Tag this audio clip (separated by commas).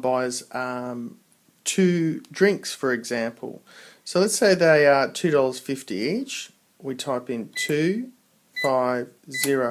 Speech